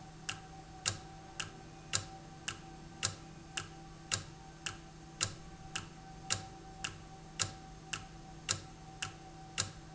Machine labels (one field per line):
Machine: valve